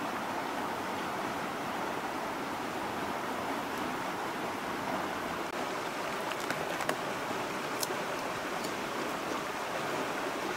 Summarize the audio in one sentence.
Water is trickling by